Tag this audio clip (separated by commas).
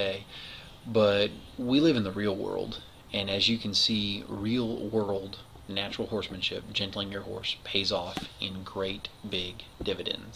Speech